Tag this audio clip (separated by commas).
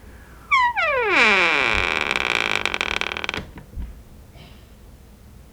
Domestic sounds, Door